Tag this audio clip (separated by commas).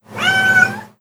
Animal, Meow, Cat, Domestic animals